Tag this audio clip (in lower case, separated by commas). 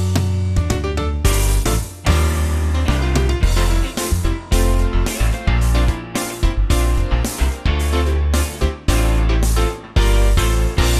music